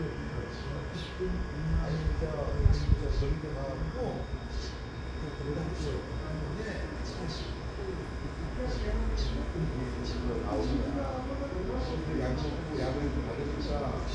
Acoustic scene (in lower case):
residential area